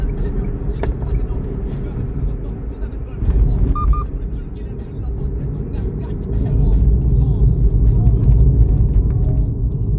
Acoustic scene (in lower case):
car